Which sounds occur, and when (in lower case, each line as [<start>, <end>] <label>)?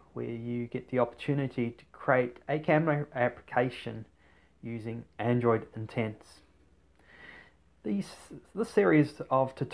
[0.00, 9.73] background noise
[0.11, 4.07] man speaking
[4.07, 4.58] breathing
[4.59, 5.02] man speaking
[5.17, 6.36] man speaking
[6.90, 7.53] breathing
[7.80, 9.73] man speaking